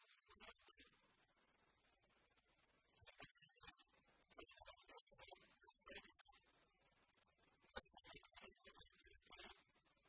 A man recites a foreign narrative as multiple others whisper in the background